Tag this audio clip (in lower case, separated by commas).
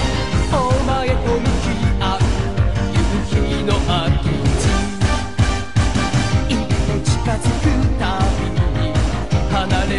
music